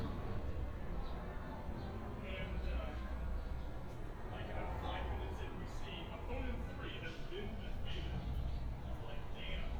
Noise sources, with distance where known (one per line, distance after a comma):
person or small group talking